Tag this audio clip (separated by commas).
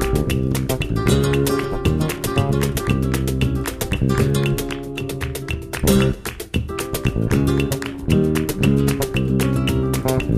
Music, Musical instrument, Ukulele